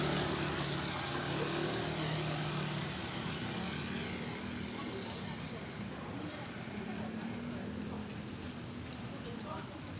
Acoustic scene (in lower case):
residential area